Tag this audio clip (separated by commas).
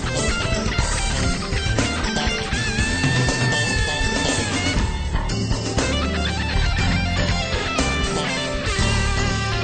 Electric guitar, Guitar, Musical instrument, Bass guitar, Music, Progressive rock